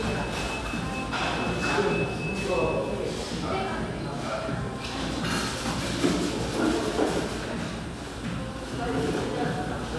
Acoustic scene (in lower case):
cafe